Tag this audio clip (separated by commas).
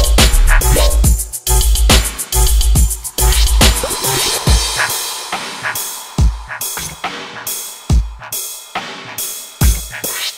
Dubstep, Music, Electronic music